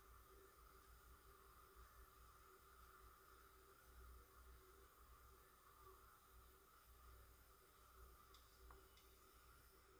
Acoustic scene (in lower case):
residential area